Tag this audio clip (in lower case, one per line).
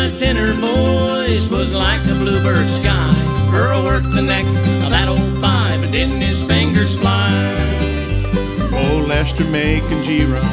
music